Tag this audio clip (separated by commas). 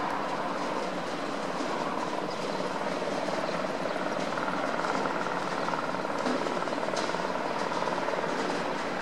Vehicle